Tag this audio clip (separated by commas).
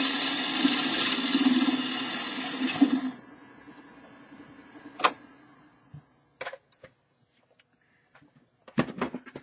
Tools, Speech